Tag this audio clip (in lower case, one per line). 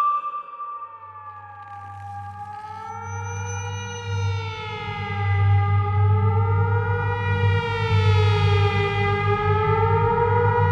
music